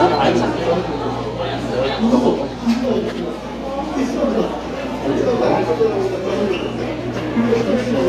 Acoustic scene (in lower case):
crowded indoor space